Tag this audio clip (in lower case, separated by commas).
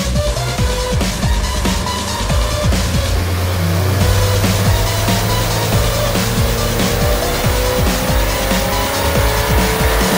engine, medium engine (mid frequency), vroom, music